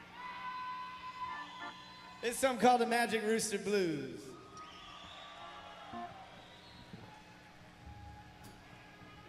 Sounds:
Speech, Music

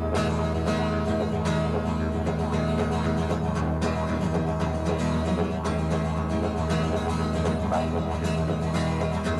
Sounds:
Country, Music, Didgeridoo, Banjo

